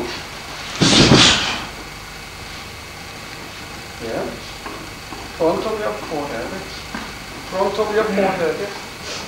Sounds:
speech

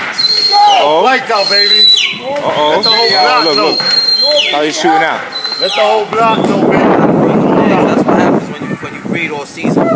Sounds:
speech, bird, coo

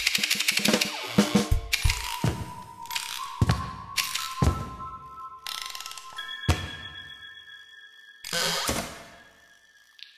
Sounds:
music

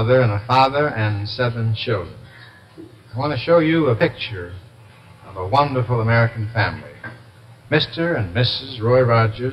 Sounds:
speech, inside a small room

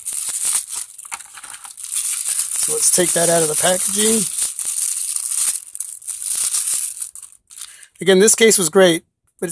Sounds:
speech, inside a small room

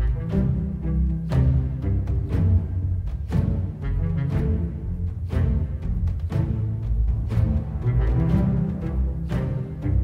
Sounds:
soundtrack music, background music, music

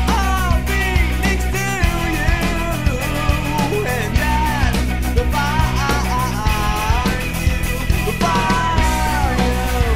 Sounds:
music

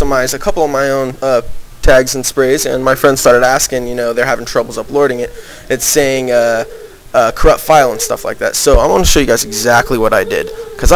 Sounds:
speech

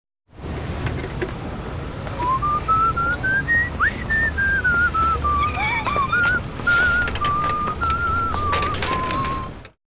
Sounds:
vehicle

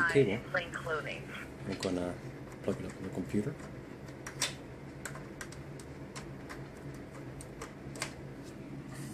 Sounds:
speech

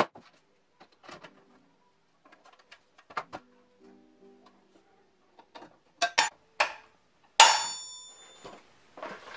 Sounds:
tools, music

